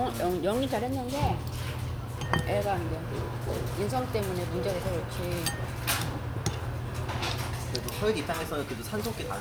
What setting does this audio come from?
restaurant